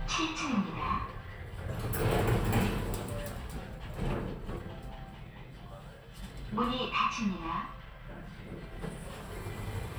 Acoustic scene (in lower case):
elevator